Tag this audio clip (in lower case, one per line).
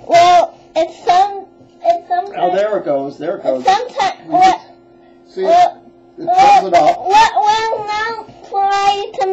speech